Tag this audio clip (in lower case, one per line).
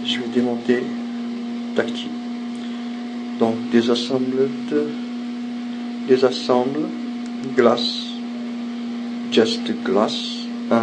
speech